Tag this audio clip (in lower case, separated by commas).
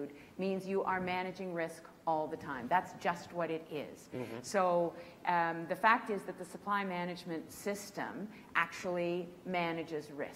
female speech, speech